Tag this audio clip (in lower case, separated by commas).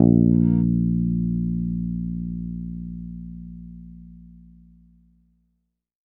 guitar, musical instrument, bass guitar, music, plucked string instrument